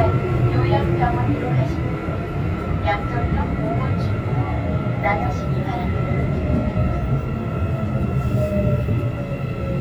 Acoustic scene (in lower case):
subway train